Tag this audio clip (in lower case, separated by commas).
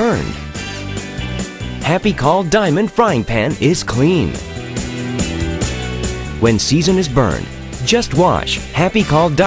music, speech